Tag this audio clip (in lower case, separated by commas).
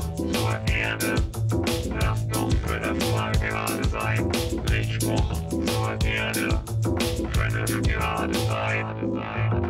music